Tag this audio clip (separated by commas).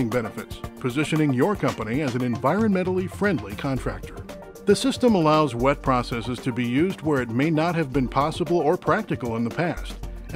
Speech, Music